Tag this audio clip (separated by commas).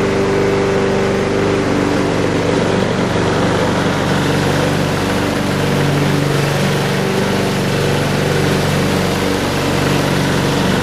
lawn mowing